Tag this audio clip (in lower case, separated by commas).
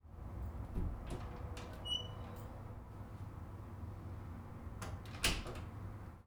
domestic sounds, slam, door